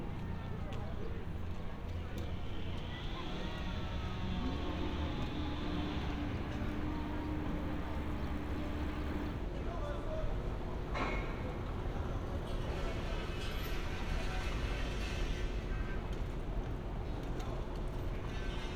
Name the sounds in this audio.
unidentified powered saw, person or small group talking